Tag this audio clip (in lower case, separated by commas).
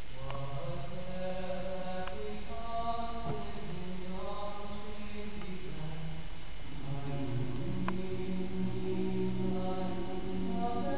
male singing, choir